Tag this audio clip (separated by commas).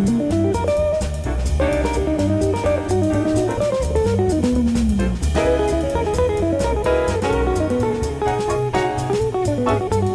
Acoustic guitar, Strum, Musical instrument, Guitar, Plucked string instrument, Music